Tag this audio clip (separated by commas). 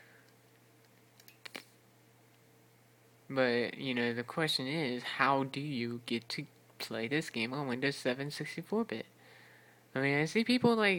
inside a small room, Speech